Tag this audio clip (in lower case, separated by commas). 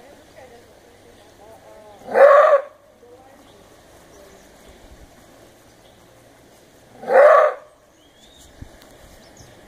speech